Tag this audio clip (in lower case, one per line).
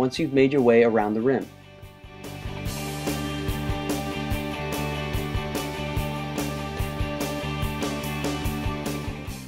speech
music